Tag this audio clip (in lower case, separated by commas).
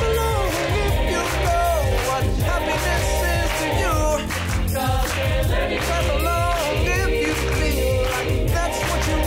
music, gospel music